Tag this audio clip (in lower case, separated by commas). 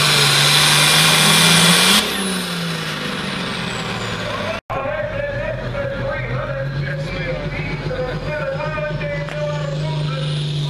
speech, heavy engine (low frequency), vehicle, engine, outside, urban or man-made